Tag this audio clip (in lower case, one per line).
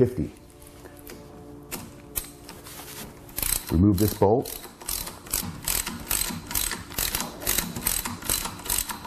speech
inside a large room or hall
music